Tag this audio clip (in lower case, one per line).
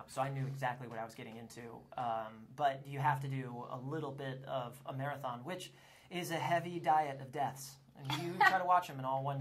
speech